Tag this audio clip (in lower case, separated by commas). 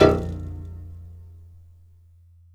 musical instrument, piano, music, keyboard (musical)